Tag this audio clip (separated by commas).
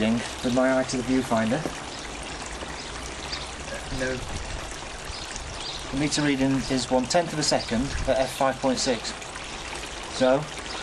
Speech